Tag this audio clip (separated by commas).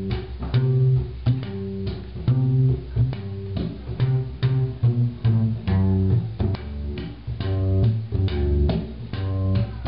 playing double bass